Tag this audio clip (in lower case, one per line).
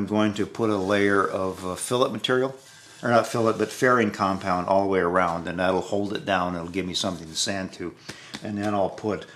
speech
wood